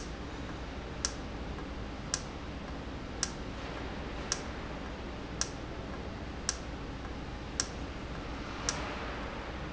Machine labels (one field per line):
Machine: valve